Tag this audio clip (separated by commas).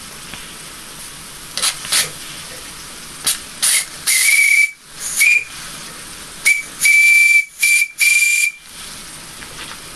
Hiss, Steam, Whistle, Steam whistle